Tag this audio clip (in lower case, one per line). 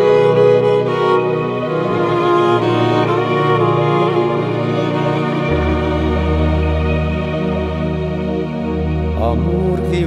music